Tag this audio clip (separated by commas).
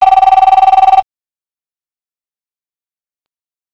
Telephone, Alarm